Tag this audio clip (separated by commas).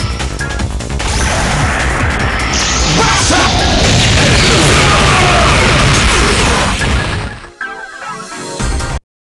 Speech, Music